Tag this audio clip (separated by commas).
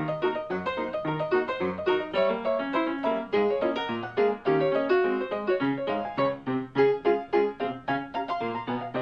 Music